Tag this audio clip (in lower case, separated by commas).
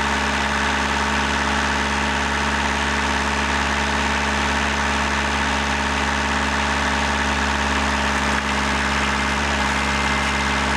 vehicle, truck